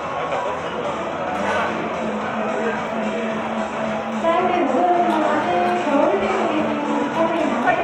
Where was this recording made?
in a cafe